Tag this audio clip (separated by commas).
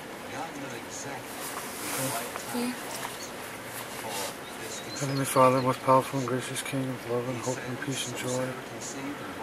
Bird, Speech